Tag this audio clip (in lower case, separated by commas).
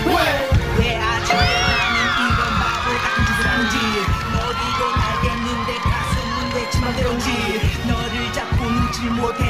music, heartbeat